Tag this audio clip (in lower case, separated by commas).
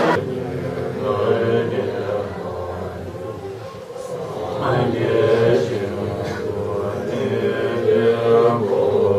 chant